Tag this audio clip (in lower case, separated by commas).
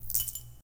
domestic sounds, coin (dropping)